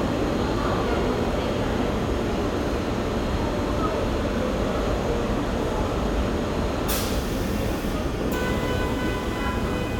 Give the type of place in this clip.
subway station